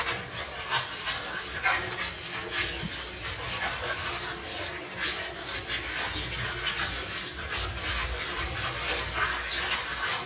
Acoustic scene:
kitchen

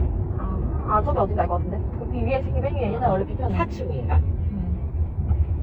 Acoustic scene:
car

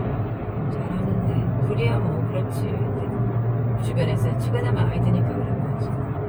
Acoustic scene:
car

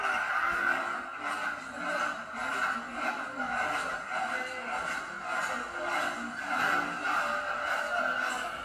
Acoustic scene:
cafe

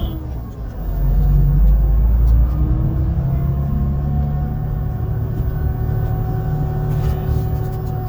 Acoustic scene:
bus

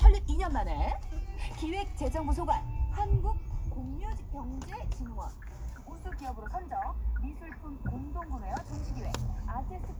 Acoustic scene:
car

